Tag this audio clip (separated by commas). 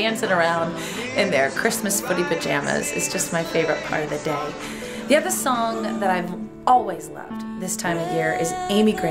Wedding music, Music, Speech, New-age music